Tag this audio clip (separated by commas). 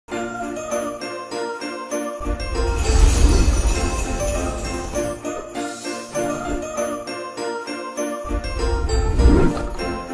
Christmas music, Jingle bell, Music, Christian music